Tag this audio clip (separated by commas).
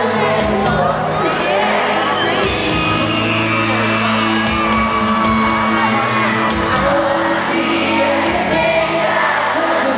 Music